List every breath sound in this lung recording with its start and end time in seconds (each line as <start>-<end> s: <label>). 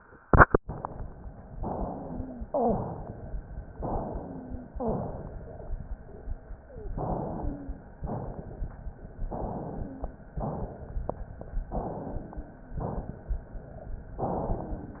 1.57-2.46 s: inhalation
1.63-2.45 s: wheeze
2.46-3.75 s: exhalation
2.48-2.91 s: wheeze
3.75-4.76 s: inhalation
4.08-4.66 s: wheeze
4.71-5.10 s: wheeze
4.76-5.75 s: exhalation
6.58-6.96 s: wheeze
6.92-7.99 s: inhalation
7.07-7.86 s: wheeze
8.01-9.22 s: exhalation
9.24-10.45 s: inhalation
9.71-10.29 s: wheeze
10.45-11.66 s: exhalation
11.72-12.77 s: inhalation
12.17-12.81 s: wheeze
12.79-14.20 s: exhalation
14.22-15.00 s: inhalation
14.24-15.00 s: wheeze